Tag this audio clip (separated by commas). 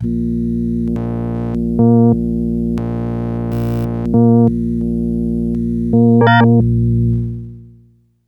Keyboard (musical), Music, Musical instrument